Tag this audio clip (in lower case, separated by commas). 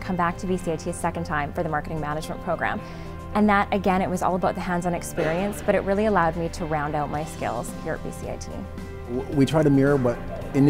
speech, music